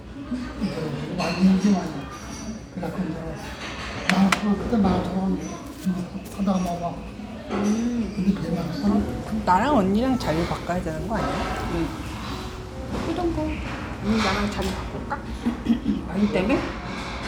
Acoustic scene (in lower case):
restaurant